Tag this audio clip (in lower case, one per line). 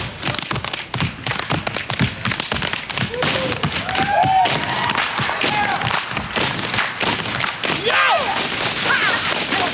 tap dancing